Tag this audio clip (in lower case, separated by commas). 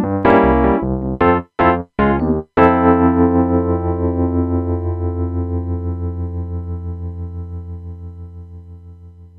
distortion, music